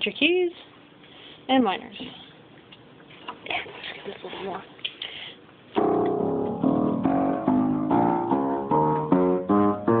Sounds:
speech, music

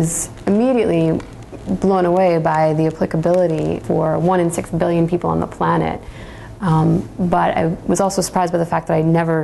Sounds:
speech

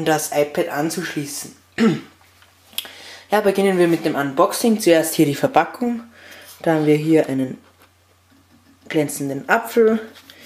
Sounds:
speech

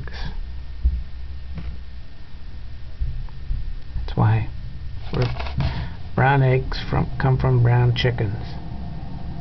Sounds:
speech

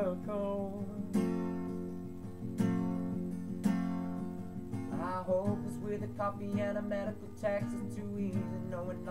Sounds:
music

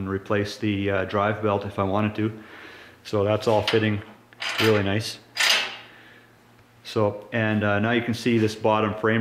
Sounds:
inside a small room, speech

